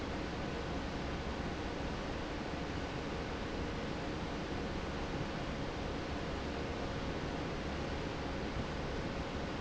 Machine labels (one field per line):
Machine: fan